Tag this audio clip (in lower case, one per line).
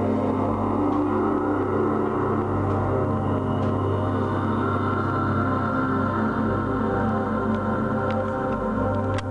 music
ambient music